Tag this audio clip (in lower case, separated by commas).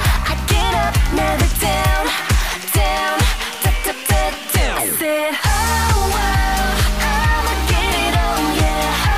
music, pop music, soundtrack music